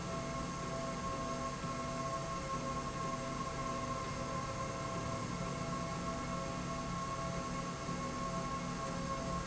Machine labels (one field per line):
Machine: slide rail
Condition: normal